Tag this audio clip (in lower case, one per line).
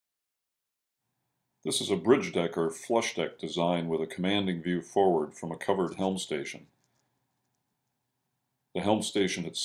speech